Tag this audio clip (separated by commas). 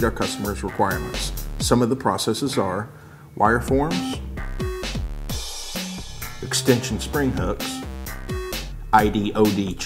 Speech, Music